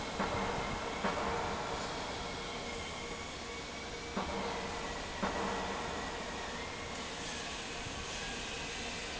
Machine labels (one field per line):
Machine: fan